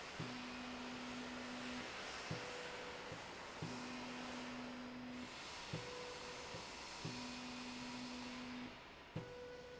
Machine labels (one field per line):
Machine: slide rail